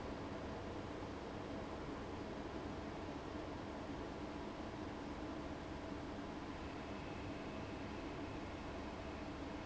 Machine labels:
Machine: fan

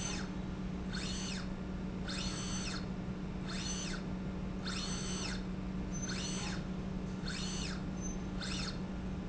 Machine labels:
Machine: slide rail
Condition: normal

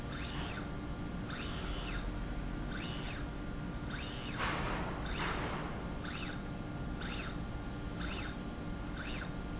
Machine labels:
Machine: slide rail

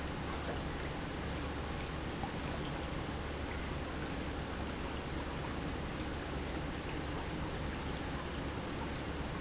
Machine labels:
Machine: pump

